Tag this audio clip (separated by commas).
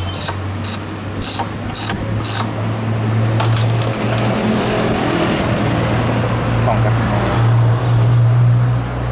Motor vehicle (road), Vehicle, Speech